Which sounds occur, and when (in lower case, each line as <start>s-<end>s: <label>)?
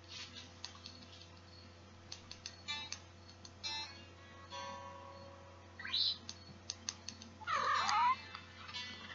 0.0s-9.1s: background noise
1.0s-1.7s: generic impact sounds
6.4s-6.7s: typing
7.3s-8.1s: caterwaul
7.4s-8.1s: purr
7.7s-9.1s: music
8.3s-8.4s: clicking